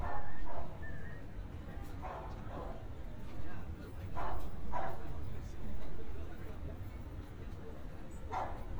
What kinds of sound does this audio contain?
person or small group talking, dog barking or whining